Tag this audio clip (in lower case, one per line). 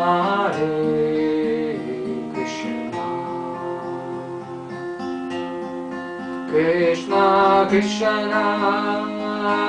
music
mantra